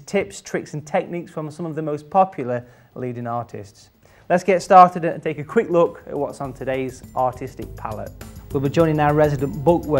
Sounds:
Music, Speech

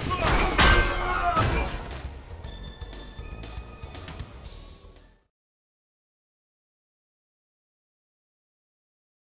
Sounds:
Music

